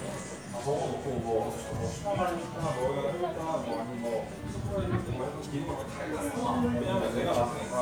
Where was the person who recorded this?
in a crowded indoor space